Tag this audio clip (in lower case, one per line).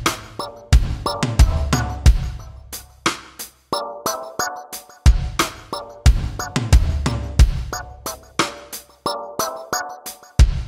musical instrument
music